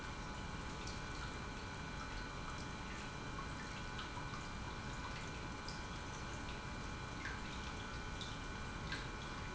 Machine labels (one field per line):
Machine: pump